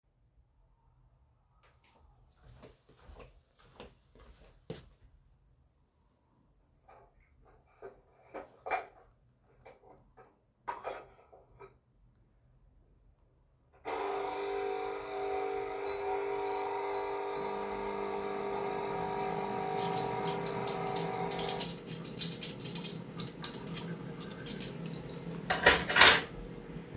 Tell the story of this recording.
I walked to the kitchen turned on the coffee machine at the same time also started the microwave. I then moved some cutlery and set them on a table.